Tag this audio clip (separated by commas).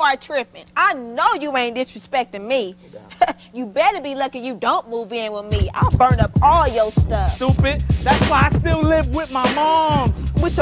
Music, Speech